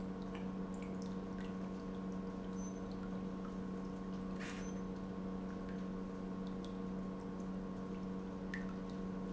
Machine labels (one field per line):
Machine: pump